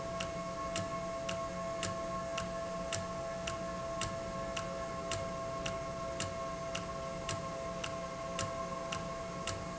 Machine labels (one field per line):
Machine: valve